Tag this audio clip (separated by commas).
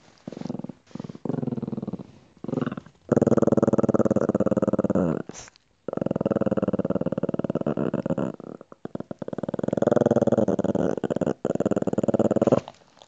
Dog, Animal, Growling, Domestic animals